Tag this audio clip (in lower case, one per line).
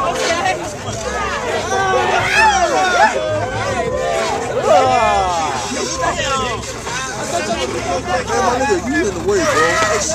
speech
outside, urban or man-made